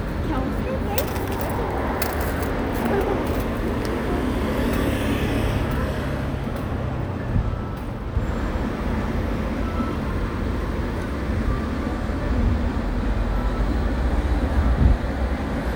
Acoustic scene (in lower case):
street